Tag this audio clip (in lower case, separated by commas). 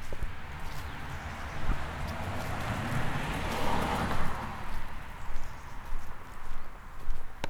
vehicle, car passing by, motor vehicle (road), car